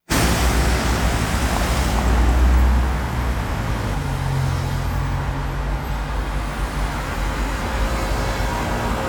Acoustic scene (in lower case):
street